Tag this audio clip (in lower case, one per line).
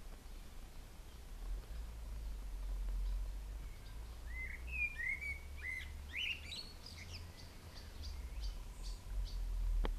bird song